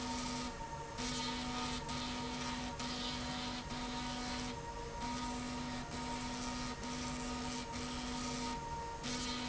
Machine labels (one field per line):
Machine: slide rail